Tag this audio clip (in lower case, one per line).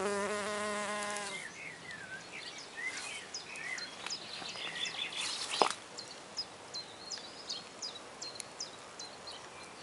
bee or wasp
animal